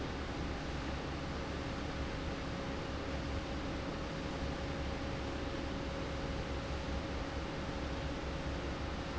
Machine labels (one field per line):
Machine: fan